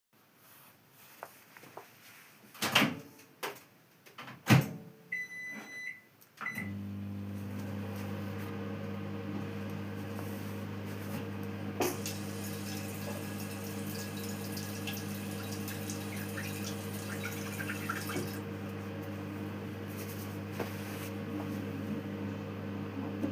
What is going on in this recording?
I start the microwave and while waiting I briefly turn on the water in the sink.